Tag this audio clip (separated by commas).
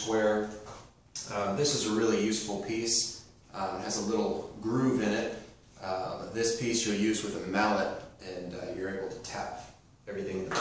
Speech